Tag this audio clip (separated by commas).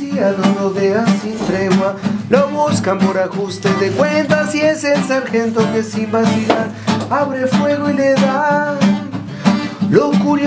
Music